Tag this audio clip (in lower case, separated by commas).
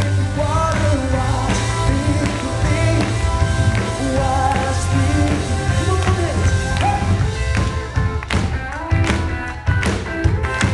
music, male singing